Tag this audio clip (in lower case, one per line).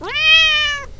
cat
animal
domestic animals